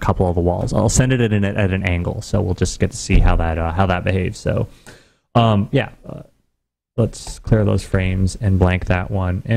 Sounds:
monologue, Speech

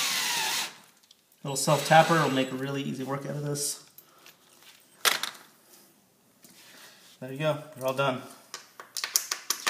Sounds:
Speech

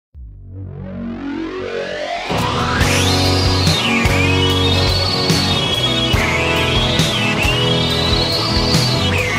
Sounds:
Music, Rock music

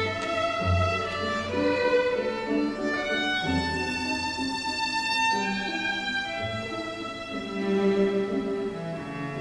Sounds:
String section

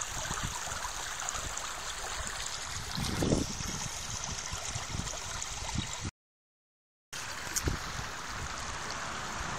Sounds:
stream burbling, Water, Stream

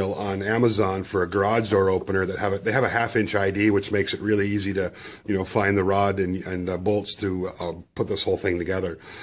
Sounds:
Speech

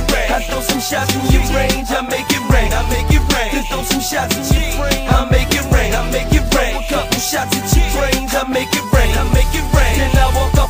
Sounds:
Music

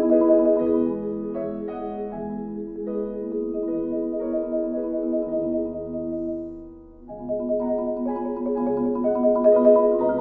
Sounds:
xylophone, Glockenspiel, Mallet percussion

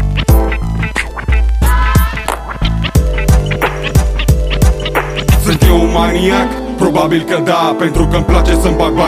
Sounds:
Music

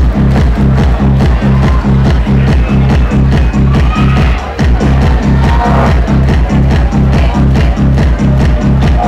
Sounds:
Disco, Music

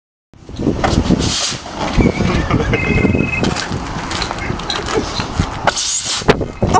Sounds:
Vehicle

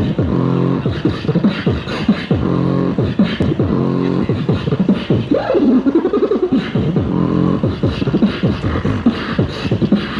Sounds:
beat boxing

